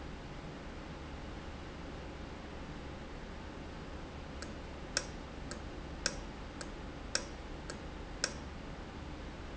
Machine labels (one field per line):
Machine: valve